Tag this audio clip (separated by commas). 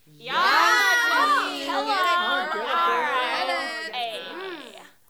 Cheering, Crowd, Human group actions